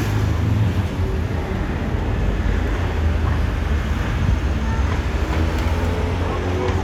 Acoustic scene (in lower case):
street